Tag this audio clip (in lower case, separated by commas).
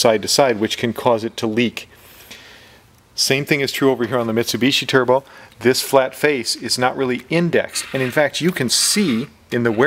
speech